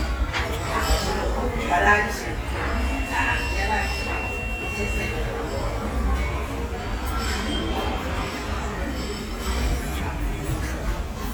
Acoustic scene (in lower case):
restaurant